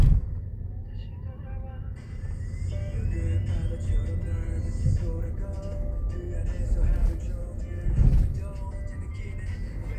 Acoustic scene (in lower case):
car